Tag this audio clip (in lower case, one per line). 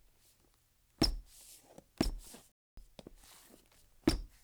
squeak